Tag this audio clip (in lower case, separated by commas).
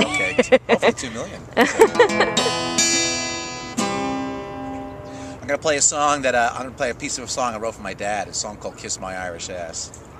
music, speech